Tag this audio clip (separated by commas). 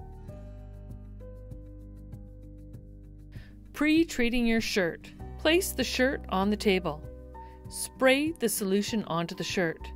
Speech, Music